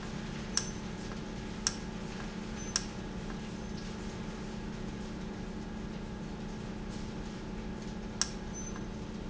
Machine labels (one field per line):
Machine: valve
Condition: normal